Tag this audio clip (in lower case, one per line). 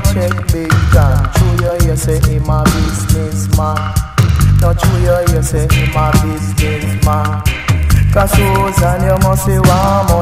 music